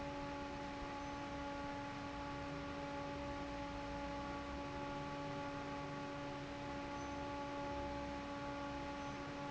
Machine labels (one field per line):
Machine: fan